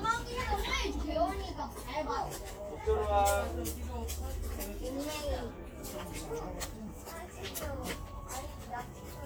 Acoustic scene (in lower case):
park